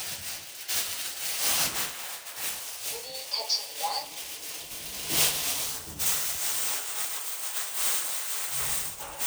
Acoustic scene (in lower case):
elevator